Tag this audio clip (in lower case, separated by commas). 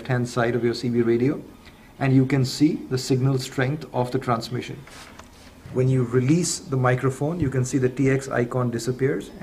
speech